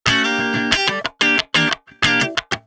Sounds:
electric guitar
plucked string instrument
musical instrument
music
guitar

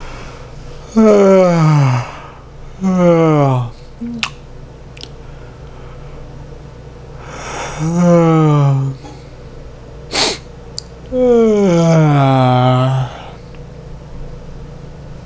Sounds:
human voice

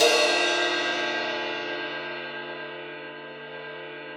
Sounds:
cymbal
music
percussion
musical instrument
crash cymbal

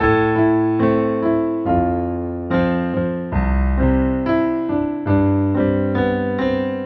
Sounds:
keyboard (musical)
musical instrument
music
piano

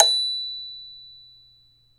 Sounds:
percussion
music
marimba
mallet percussion
musical instrument

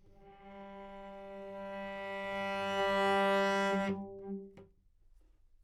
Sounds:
bowed string instrument
musical instrument
music

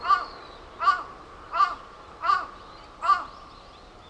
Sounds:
wild animals
bird
animal
crow

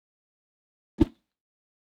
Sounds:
whoosh

